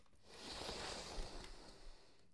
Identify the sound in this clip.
wooden furniture moving